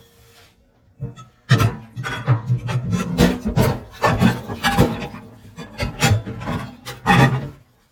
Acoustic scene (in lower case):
kitchen